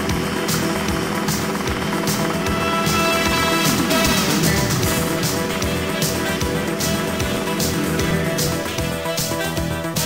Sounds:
Helicopter, Vehicle, Music

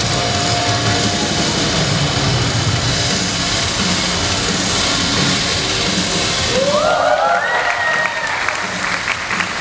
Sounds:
inside a public space

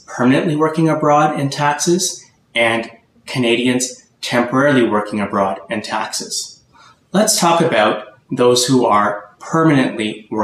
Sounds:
Speech

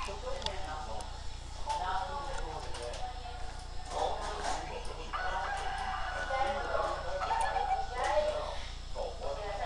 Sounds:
Animal, Speech

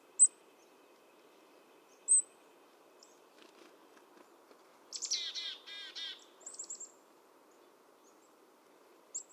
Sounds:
Bird, outside, rural or natural

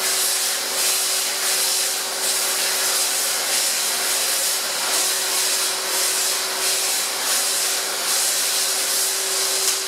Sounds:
Tools

